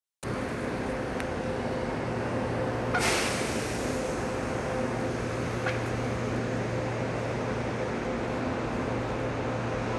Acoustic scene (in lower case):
subway station